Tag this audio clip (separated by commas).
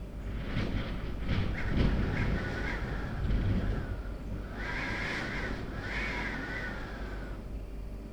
Wind